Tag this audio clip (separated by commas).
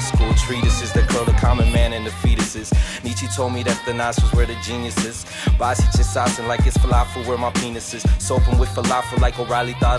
rapping